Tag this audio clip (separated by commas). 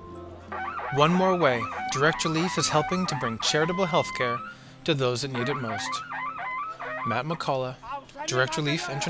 Speech, Music